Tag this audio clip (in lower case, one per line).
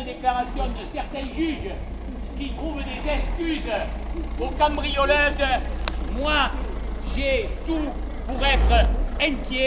speech